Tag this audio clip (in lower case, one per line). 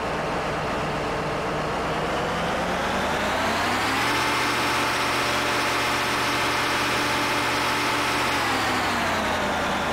truck